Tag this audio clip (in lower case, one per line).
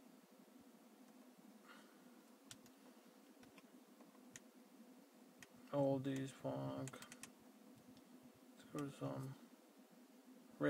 speech